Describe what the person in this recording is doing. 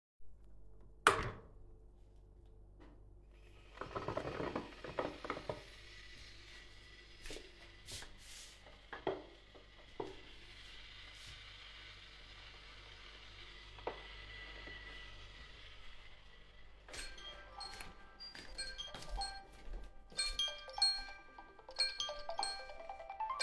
I was making a tee, when my phone rang